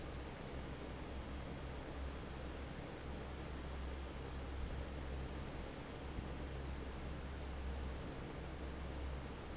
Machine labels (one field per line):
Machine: fan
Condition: normal